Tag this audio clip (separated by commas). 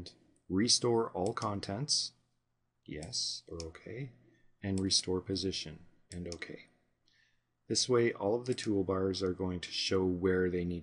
Speech